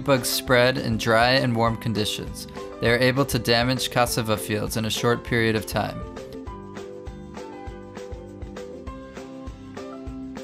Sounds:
Speech

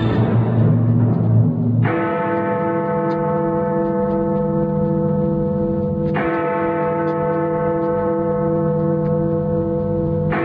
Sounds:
Tick, Music, Tick-tock

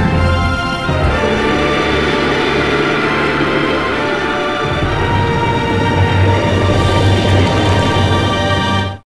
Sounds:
Music, Video game music

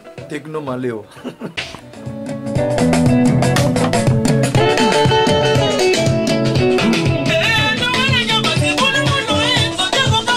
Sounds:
Music, Electronic music

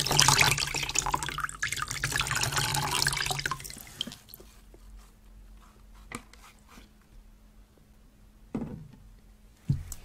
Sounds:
Water

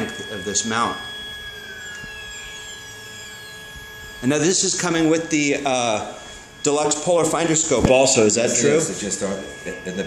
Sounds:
Speech

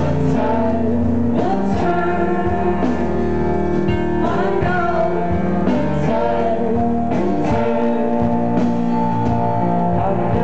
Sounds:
Music, Singing

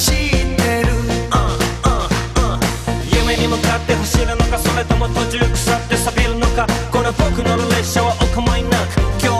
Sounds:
Dance music, Music

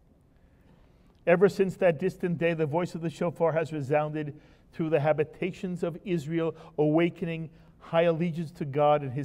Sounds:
Speech

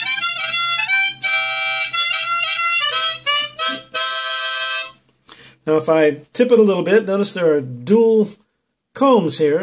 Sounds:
Music, Speech, Harmonica

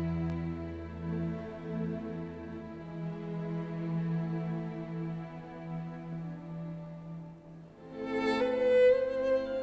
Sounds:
Music

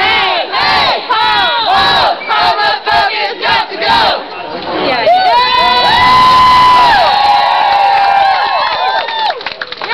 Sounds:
Battle cry, Crowd, Cheering

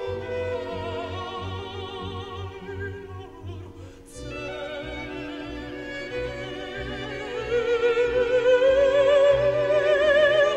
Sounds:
Opera, Music

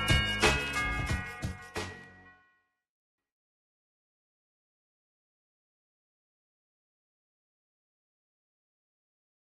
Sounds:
Music

